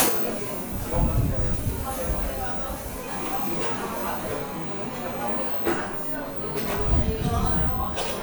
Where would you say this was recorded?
in a cafe